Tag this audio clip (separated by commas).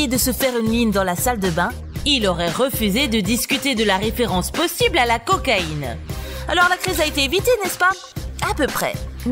Music, Speech